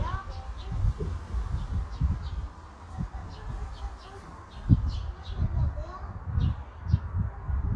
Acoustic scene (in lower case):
park